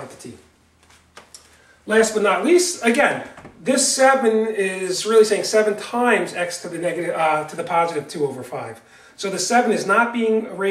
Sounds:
speech

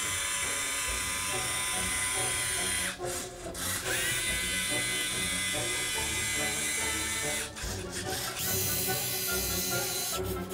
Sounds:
music, printer

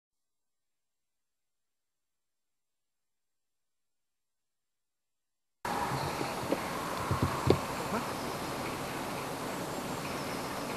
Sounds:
speech

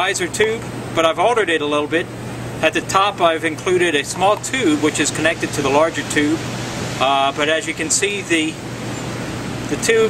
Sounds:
speech

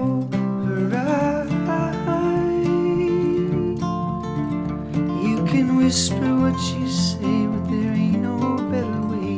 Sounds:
music

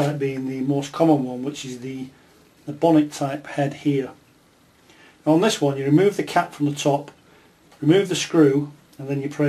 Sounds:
speech

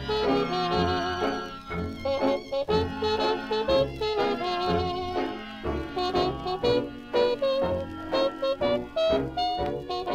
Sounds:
music, orchestra

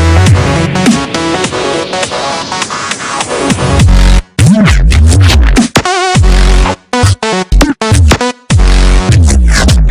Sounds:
music

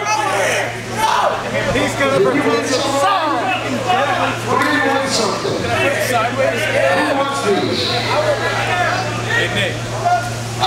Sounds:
speech

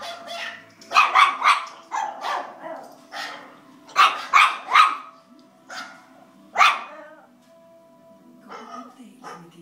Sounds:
pets, speech, animal, bark, dog

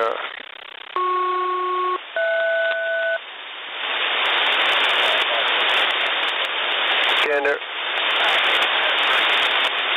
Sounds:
radio, speech

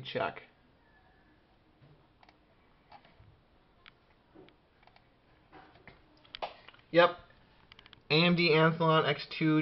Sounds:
inside a small room, speech

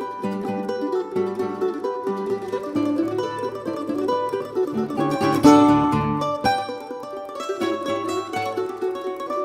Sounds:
orchestra, musical instrument, ukulele, mandolin, music

